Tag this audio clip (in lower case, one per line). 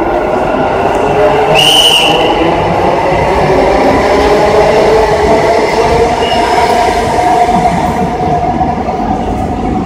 subway